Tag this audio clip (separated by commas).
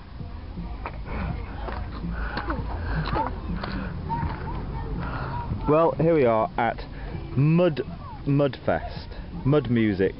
Speech